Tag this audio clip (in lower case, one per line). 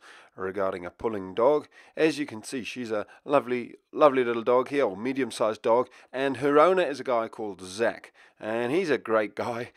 speech